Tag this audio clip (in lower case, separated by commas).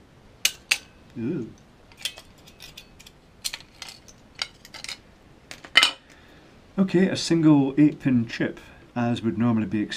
silverware, dishes, pots and pans